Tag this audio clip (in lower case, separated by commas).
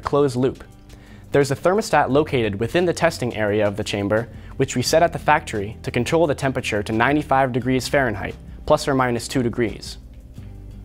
speech